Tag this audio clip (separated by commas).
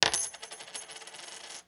Domestic sounds, Coin (dropping)